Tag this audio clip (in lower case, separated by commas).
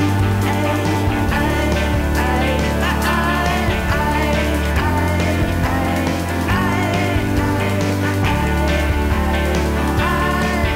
psychedelic rock, music